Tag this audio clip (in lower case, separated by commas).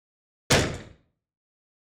explosion, gunshot